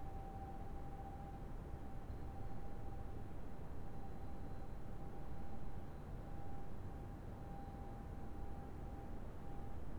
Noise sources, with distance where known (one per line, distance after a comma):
background noise